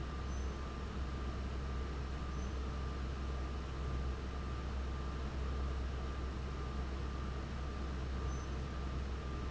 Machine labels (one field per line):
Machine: fan